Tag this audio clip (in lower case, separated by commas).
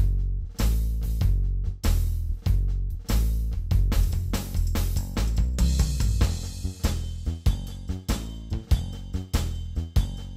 drum kit, musical instrument, music